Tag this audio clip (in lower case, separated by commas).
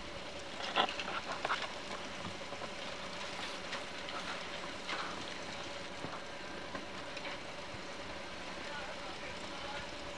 vehicle